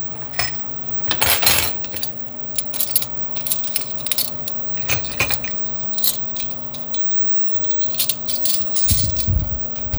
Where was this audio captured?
in a kitchen